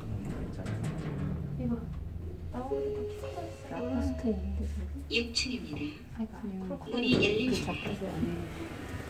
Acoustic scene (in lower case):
elevator